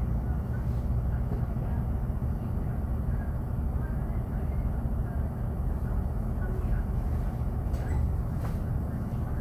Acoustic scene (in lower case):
bus